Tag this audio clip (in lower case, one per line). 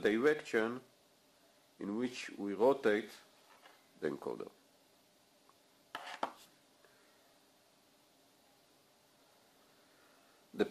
inside a small room
speech